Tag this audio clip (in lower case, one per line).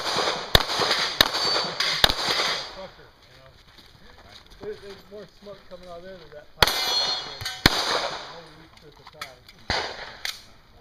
gunshot